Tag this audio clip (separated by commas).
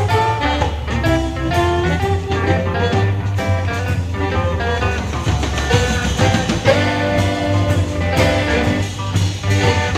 Blues, Music